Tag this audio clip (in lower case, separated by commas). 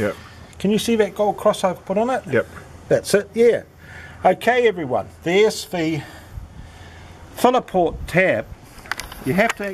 outside, urban or man-made, speech